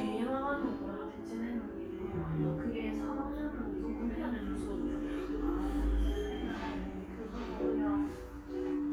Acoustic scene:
crowded indoor space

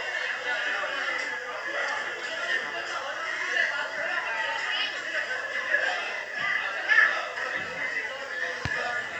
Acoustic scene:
crowded indoor space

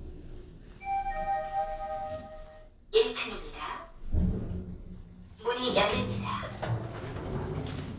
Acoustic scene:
elevator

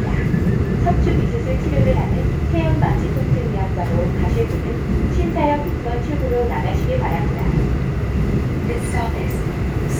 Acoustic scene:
subway train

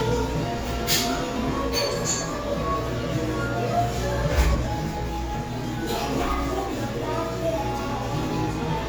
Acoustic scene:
cafe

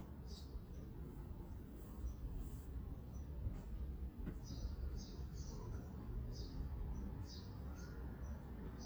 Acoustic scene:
residential area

